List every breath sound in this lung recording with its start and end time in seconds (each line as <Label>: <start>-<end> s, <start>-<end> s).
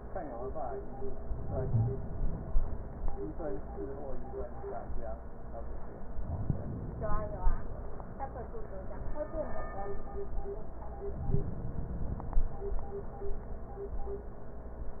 Inhalation: 1.28-2.78 s, 6.23-7.73 s, 11.06-12.56 s